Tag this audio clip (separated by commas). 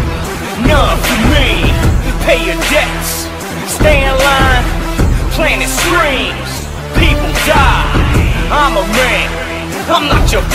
Angry music, Music